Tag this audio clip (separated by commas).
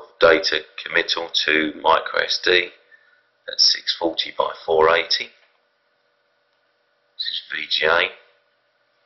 Speech